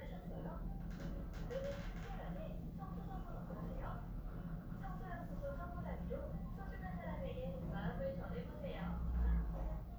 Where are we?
in an elevator